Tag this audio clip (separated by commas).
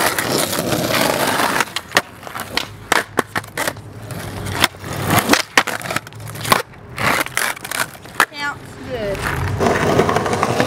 skateboarding